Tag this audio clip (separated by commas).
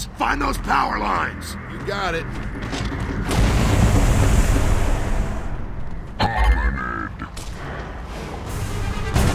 Speech